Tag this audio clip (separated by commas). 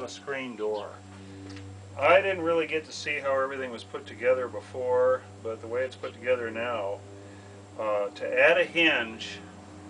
Speech